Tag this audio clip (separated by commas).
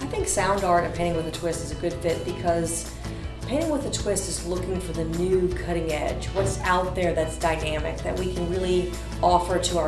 Music, Speech